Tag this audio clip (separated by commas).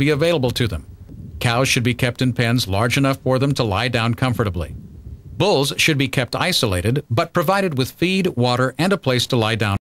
Speech